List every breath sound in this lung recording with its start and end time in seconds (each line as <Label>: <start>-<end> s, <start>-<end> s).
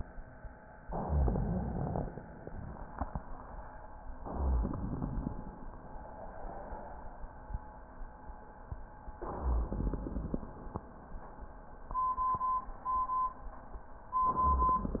Inhalation: 0.86-2.02 s, 4.22-5.38 s, 9.24-10.40 s
Crackles: 0.86-2.02 s, 4.22-5.38 s, 9.24-10.40 s